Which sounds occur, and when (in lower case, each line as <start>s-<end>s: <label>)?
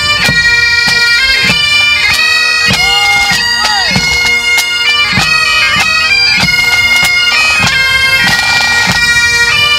0.0s-9.7s: music
0.2s-0.4s: clip-clop
0.8s-1.0s: clip-clop
1.3s-1.5s: clip-clop
2.0s-2.2s: clip-clop
2.6s-2.8s: clip-clop
2.7s-4.2s: male speech
3.3s-4.3s: clip-clop
4.5s-4.7s: clip-clop
4.9s-5.3s: clip-clop
5.7s-5.9s: clip-clop
6.3s-7.1s: clip-clop
7.4s-7.8s: clip-clop
8.3s-8.4s: clip-clop
8.9s-9.1s: clip-clop
9.5s-9.7s: clip-clop